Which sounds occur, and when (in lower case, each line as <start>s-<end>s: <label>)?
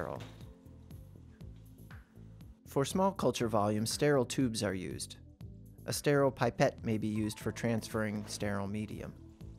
0.0s-9.5s: music
2.7s-5.2s: male speech
5.8s-9.1s: male speech